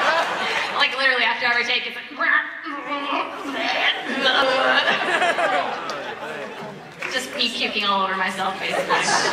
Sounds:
speech

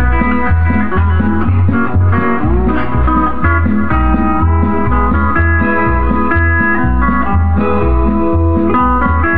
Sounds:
music
plucked string instrument
musical instrument
guitar

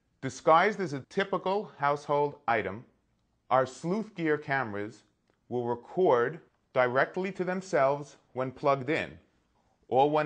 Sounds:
speech

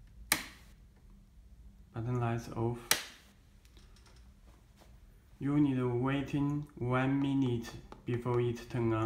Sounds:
speech

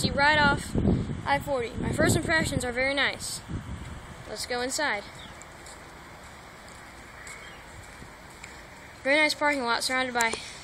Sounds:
speech

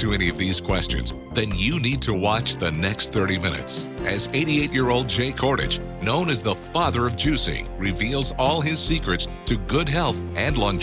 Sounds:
music
speech

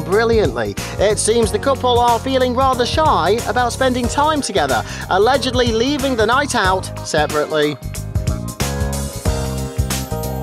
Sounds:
speech
music

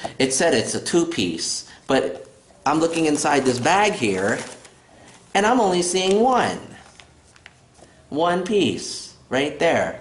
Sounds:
speech
inside a small room

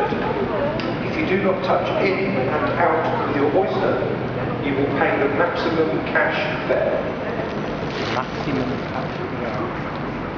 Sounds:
speech

